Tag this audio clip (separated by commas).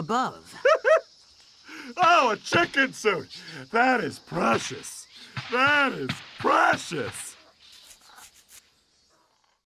Speech